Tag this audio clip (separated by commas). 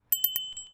Vehicle, Bicycle bell, Bicycle, Bell, Alarm